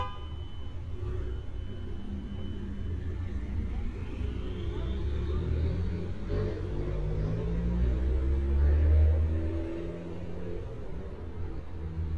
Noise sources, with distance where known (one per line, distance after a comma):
large-sounding engine, near
car horn, near